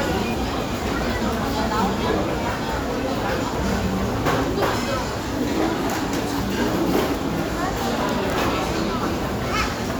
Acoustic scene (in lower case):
restaurant